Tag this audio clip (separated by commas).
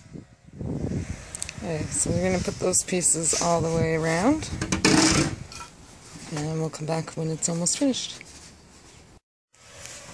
Speech